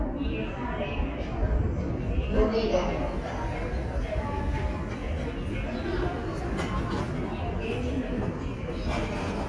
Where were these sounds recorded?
in a subway station